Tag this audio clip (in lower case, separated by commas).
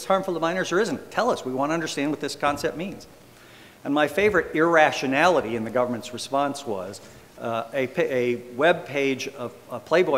man speaking, narration, speech